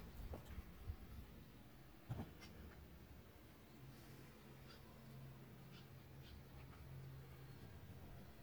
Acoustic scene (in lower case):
park